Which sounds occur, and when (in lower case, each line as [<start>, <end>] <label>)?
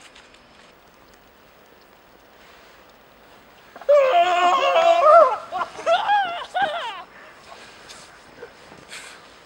[0.00, 0.67] footsteps
[0.00, 9.45] wind
[0.82, 0.94] footsteps
[1.09, 1.27] footsteps
[1.53, 1.87] footsteps
[2.13, 2.26] footsteps
[2.41, 2.90] breathing
[2.86, 3.83] footsteps
[3.24, 3.75] breathing
[3.78, 5.77] shout
[5.71, 9.20] laughter
[7.44, 8.17] breathing
[8.92, 9.26] breathing